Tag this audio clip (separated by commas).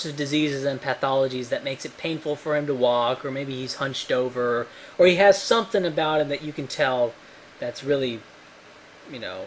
Male speech, Speech